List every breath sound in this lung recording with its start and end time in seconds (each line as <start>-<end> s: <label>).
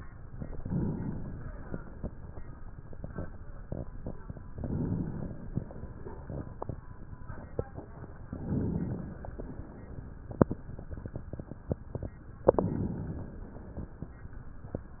0.35-1.42 s: inhalation
1.43-2.93 s: exhalation
4.51-5.52 s: inhalation
5.53-7.02 s: exhalation
8.31-9.15 s: inhalation
9.12-10.35 s: exhalation
12.43-13.47 s: inhalation
13.48-14.44 s: exhalation